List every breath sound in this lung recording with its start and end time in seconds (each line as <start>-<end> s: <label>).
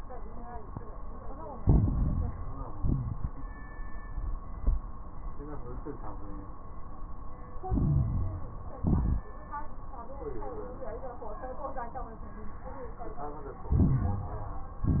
1.56-2.71 s: inhalation
1.56-2.71 s: crackles
2.72-3.34 s: exhalation
7.66-8.81 s: inhalation
7.66-8.81 s: crackles
8.82-9.25 s: exhalation
8.82-9.25 s: crackles
13.68-14.84 s: inhalation
13.68-14.84 s: crackles
14.84-15.00 s: exhalation
14.84-15.00 s: crackles